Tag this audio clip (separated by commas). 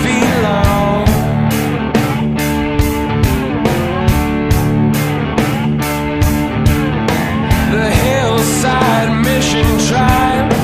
Music, Soundtrack music, Jingle (music)